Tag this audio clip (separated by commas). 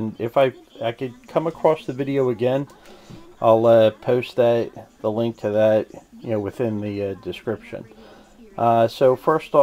Speech